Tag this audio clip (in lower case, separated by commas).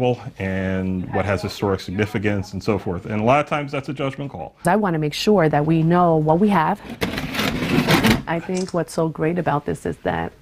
speech